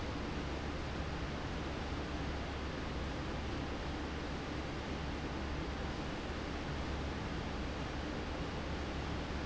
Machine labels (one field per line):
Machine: fan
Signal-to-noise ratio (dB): -6 dB